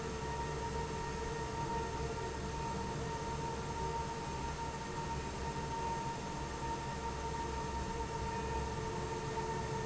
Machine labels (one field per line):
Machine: fan